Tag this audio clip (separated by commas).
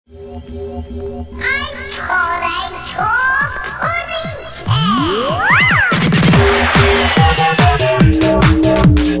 Music